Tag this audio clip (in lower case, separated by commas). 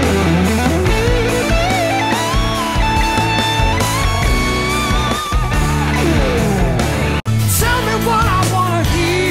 musical instrument, guitar, strum, plucked string instrument, music, electric guitar